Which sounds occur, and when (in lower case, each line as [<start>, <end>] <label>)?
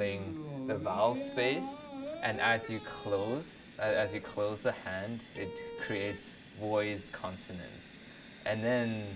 [0.00, 1.88] male speech
[0.00, 3.37] music
[0.00, 9.15] mechanisms
[1.26, 1.35] tick
[2.21, 7.96] male speech
[3.78, 4.55] music
[5.18, 6.42] music
[7.21, 7.33] tick
[8.00, 8.38] breathing
[8.43, 9.15] male speech
[9.02, 9.12] tick